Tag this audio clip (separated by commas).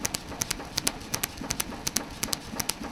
Tools